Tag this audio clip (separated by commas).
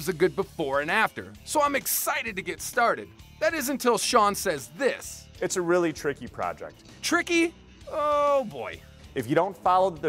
Music, Speech